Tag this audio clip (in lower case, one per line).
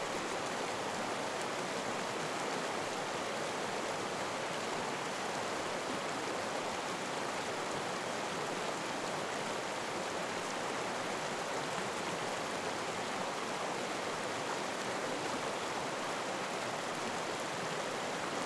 stream
water